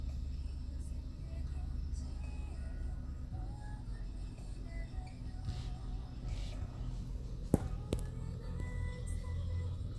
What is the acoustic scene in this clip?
car